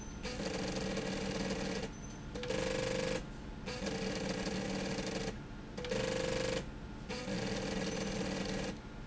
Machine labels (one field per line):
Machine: slide rail